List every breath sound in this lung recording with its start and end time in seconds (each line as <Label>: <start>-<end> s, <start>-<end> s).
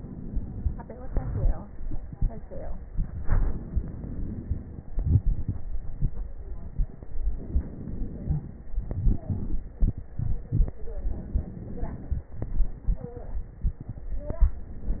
Inhalation: 3.19-4.91 s, 7.30-8.73 s, 10.83-12.34 s
Exhalation: 1.03-3.17 s, 4.92-7.31 s, 8.74-10.82 s, 12.36-14.51 s
Crackles: 1.03-3.17 s, 3.18-4.90 s, 4.92-7.30 s, 7.32-8.71 s, 8.74-10.79 s, 10.83-12.34 s, 12.36-14.51 s